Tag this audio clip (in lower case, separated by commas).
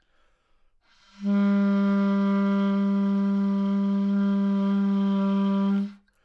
woodwind instrument, music, musical instrument